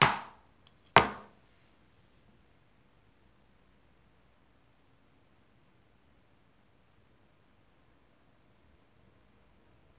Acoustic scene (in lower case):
kitchen